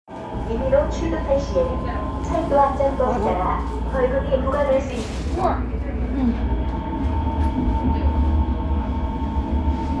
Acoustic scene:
subway train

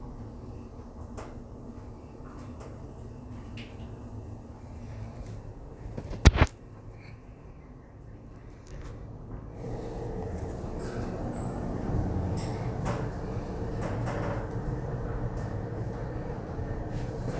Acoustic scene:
elevator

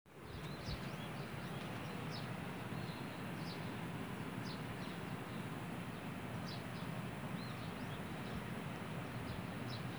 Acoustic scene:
park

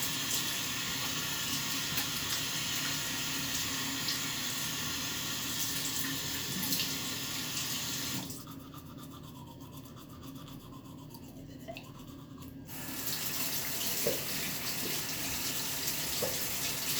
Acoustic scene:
restroom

